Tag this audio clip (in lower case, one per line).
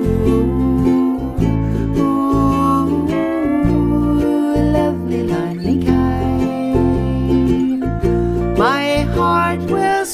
ukulele
music